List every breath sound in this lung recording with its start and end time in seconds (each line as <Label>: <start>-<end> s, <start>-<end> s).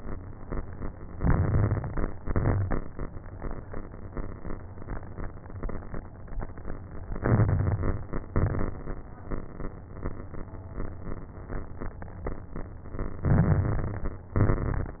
Inhalation: 1.14-2.12 s, 7.07-8.17 s, 13.22-14.27 s
Exhalation: 2.17-2.98 s, 8.28-9.06 s, 14.35-15.00 s
Crackles: 1.14-2.12 s, 2.17-2.98 s, 7.07-8.17 s, 8.28-9.06 s, 13.22-14.27 s, 14.35-15.00 s